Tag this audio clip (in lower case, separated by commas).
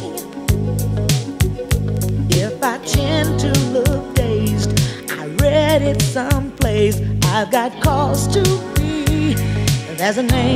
music, soul music